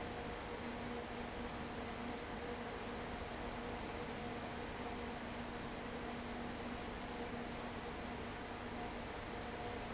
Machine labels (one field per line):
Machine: fan